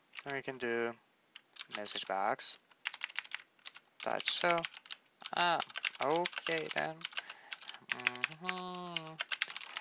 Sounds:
Typing, Speech

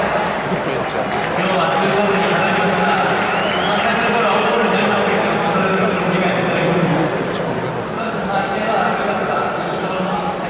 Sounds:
people booing

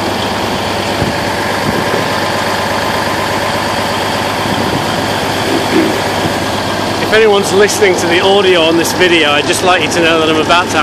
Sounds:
Vehicle, Speech, outside, urban or man-made

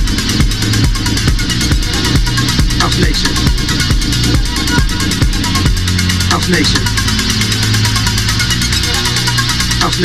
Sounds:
Speech, Music

